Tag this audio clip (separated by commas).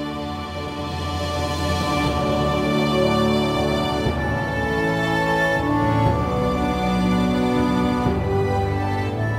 Music